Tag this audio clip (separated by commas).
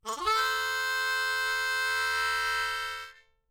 Music, Musical instrument, Harmonica